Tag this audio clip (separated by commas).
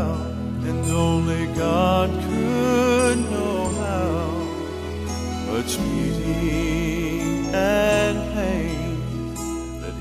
Music